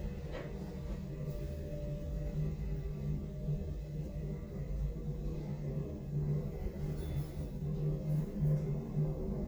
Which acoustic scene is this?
elevator